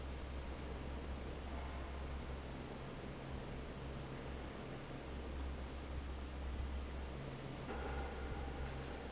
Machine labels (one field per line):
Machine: fan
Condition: normal